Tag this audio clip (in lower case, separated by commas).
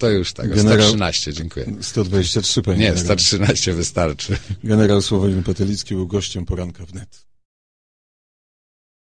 speech, radio